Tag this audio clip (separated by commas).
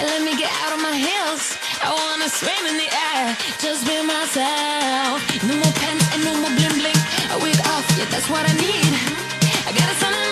Music